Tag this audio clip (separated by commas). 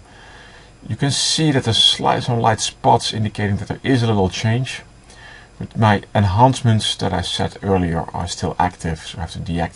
Speech